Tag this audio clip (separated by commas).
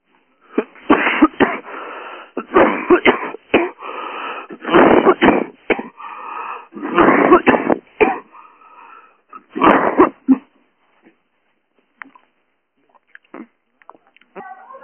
Respiratory sounds, Cough